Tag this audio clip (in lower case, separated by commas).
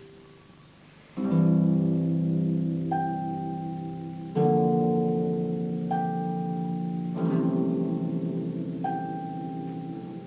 musical instrument, harp, playing harp, music, plucked string instrument, inside a small room